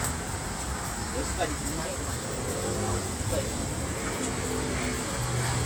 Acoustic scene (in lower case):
street